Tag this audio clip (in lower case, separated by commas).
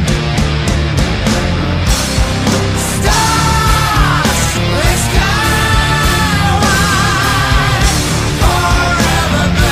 music, angry music